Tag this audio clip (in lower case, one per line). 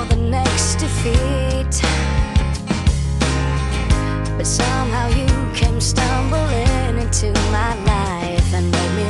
music